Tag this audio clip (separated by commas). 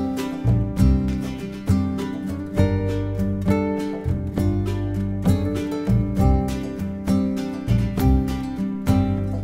Music